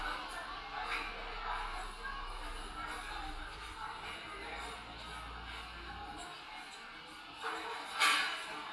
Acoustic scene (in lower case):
crowded indoor space